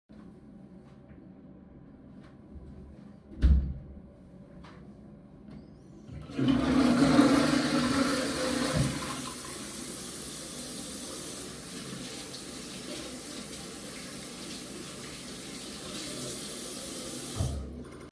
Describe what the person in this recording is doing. I entered the bathroom, closed the door. I flushed the toilet and turned on the sink to wash my hands and then turned it off.